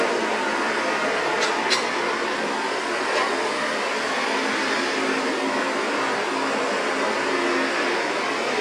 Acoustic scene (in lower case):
street